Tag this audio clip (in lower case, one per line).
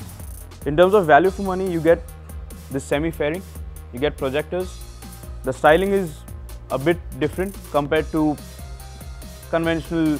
music
speech